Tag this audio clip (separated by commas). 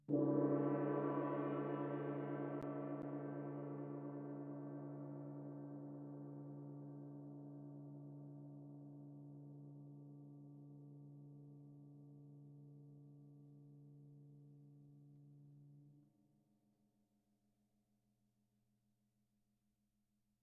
Musical instrument, Percussion, Music, Gong